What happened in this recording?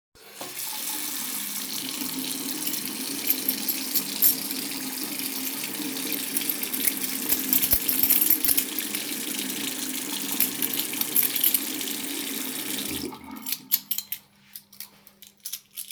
I turn on the tap to let the running water flow into the sink while i look for my keys causing them to jingle